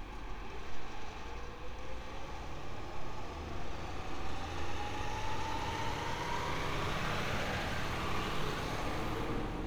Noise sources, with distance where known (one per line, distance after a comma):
large-sounding engine, near